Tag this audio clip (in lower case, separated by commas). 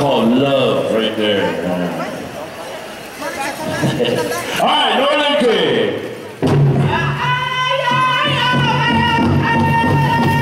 speech, music